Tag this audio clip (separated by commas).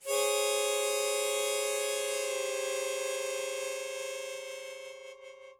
Music, Musical instrument, Harmonica